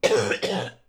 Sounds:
Cough, Respiratory sounds, Human voice

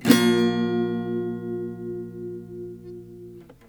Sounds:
Music, Strum, Guitar, Acoustic guitar, Plucked string instrument, Musical instrument

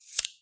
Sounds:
Fire

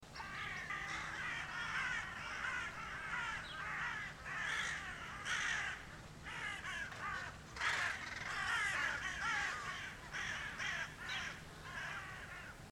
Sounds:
Animal, Crow, Bird, Wild animals

